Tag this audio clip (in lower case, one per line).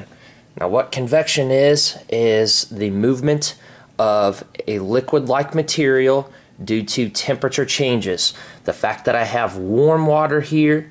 speech